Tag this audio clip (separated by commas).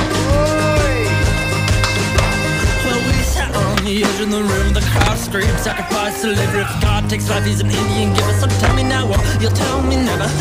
Music, Skateboard, Speech